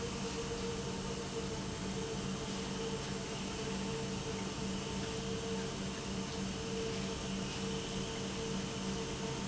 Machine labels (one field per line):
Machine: pump